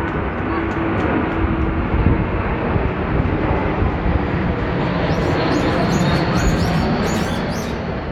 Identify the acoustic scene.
residential area